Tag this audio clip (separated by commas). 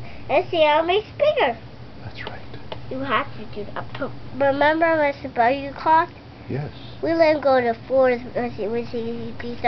Speech